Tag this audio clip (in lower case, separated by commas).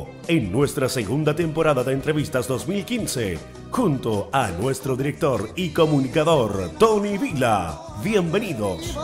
speech, music